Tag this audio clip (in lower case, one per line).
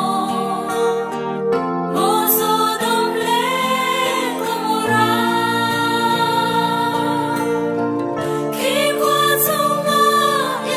music